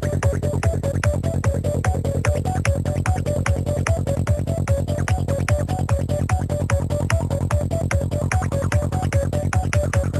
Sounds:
Music

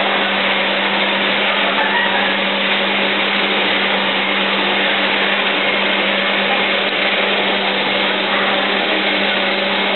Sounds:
Tools, Power tool

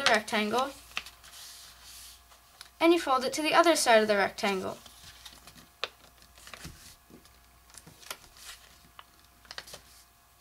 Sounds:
Speech

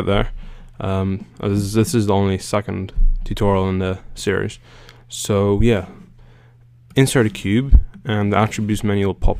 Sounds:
Speech

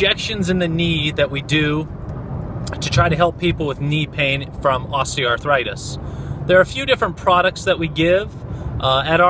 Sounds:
Speech

